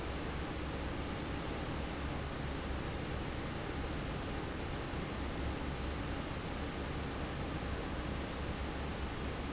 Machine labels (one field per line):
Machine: fan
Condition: normal